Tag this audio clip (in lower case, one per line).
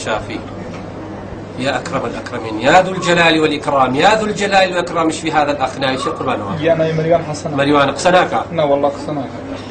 speech